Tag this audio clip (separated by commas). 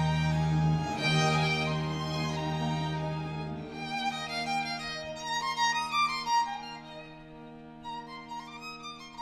Musical instrument, Music, fiddle